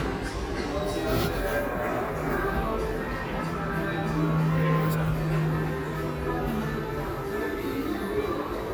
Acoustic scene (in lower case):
subway station